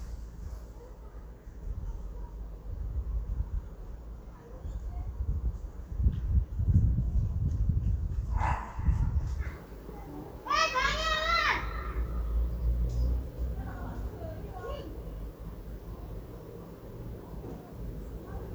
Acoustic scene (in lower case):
residential area